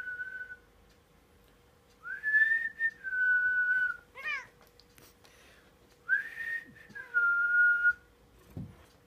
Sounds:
people whistling

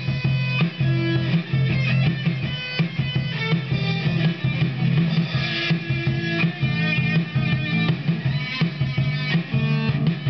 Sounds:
music, guitar, drum machine

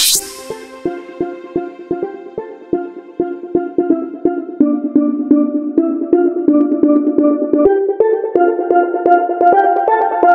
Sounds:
steelpan, music

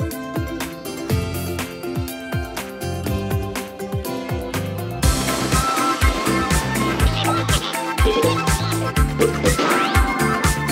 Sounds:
music

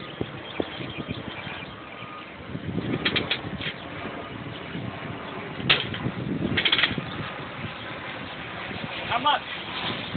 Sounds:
speech

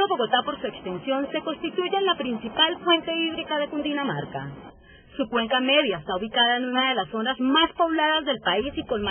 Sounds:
speech

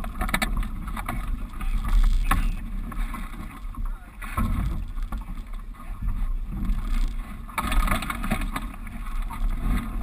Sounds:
water vehicle, canoe, rowboat

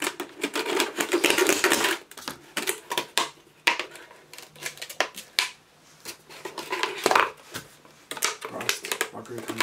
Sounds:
plastic bottle crushing

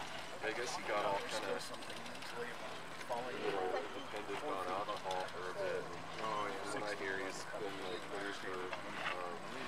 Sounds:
speech

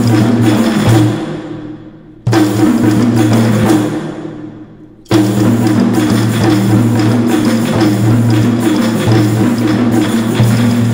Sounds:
music

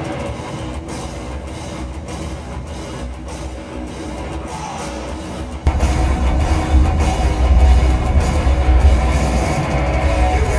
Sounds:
music

